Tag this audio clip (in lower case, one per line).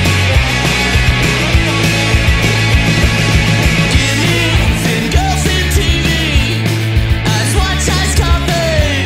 music